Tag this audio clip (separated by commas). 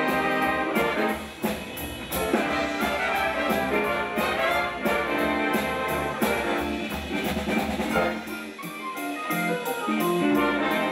Trombone, Music, Orchestra, Swing music, Brass instrument, Musical instrument